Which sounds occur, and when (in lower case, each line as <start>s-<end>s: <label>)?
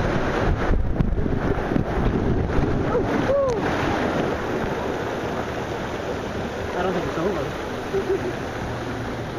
0.0s-9.3s: splatter
0.4s-2.8s: wind noise (microphone)
2.8s-3.1s: whoop
3.3s-3.6s: whoop
3.4s-3.5s: tick
6.7s-7.6s: male speech
7.9s-8.3s: laughter